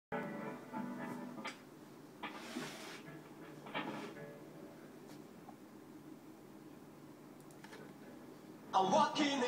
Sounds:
electric guitar, guitar, music, musical instrument, plucked string instrument

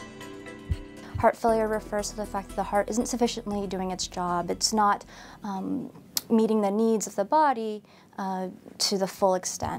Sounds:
speech, music

